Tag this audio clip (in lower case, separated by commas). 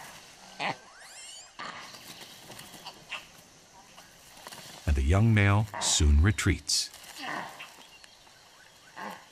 speech, outside, rural or natural, animal